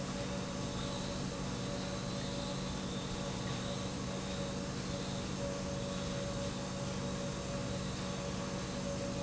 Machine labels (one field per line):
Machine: pump